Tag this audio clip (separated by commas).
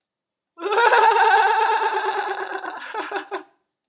Laughter, Human voice